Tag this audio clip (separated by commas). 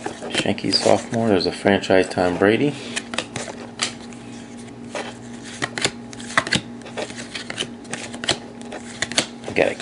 inside a small room, Speech